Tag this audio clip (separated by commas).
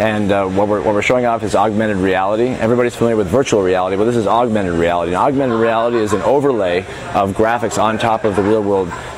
Speech